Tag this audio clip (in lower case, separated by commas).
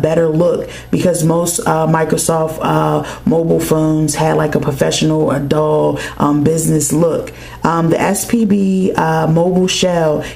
speech